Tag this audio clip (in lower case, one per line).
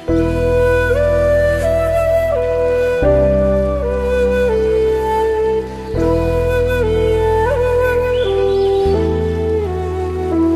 music
tender music